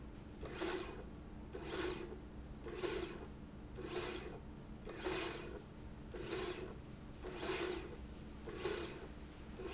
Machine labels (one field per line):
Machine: slide rail